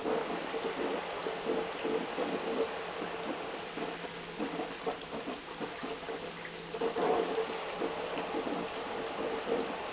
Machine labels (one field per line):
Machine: pump